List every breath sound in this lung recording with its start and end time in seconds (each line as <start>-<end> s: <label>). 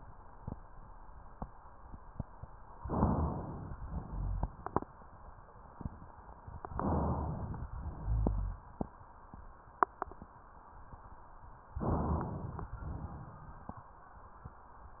2.79-3.72 s: inhalation
2.83-3.38 s: rhonchi
3.83-4.76 s: exhalation
4.06-4.61 s: rhonchi
6.74-7.67 s: inhalation
6.77-7.50 s: rhonchi
7.76-8.69 s: exhalation
7.97-8.69 s: rhonchi
11.84-12.39 s: rhonchi
11.84-12.71 s: inhalation
12.79-13.72 s: exhalation